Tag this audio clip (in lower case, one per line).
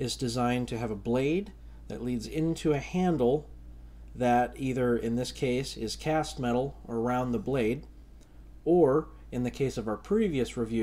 speech